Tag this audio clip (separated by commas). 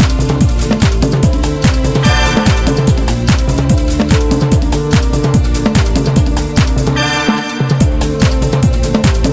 Music